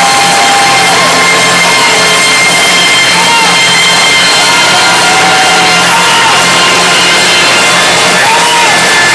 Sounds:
Yell, Speech, Music, Whoop

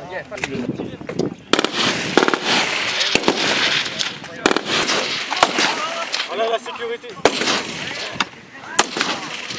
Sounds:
Speech, outside, rural or natural

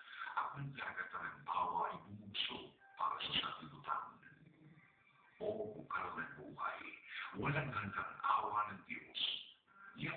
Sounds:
Music, Speech

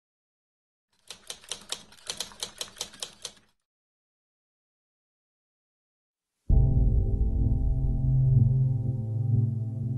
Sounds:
Typewriter, Music

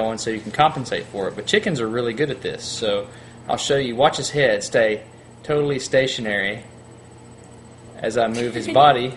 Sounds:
Speech

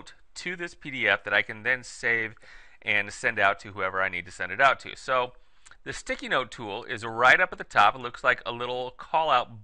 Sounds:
Speech

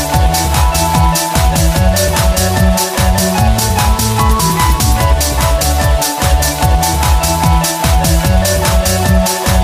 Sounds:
Electronic music, Techno, Music, Soundtrack music

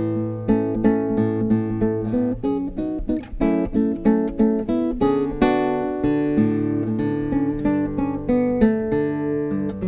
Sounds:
Musical instrument, Guitar, Plucked string instrument, Acoustic guitar, Music

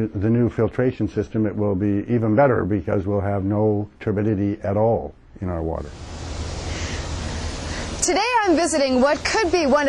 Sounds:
Speech

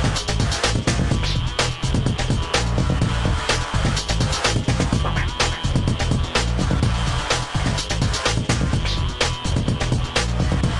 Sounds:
Music

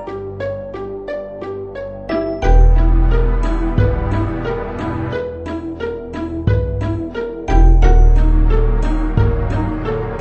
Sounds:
Background music, Music

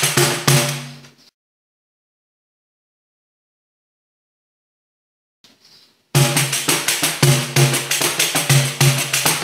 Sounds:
playing tambourine

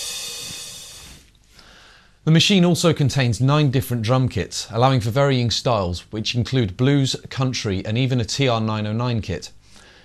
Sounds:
Speech, Music, Drum machine

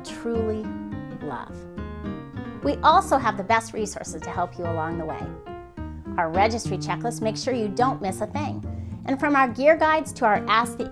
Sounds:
Music, Speech

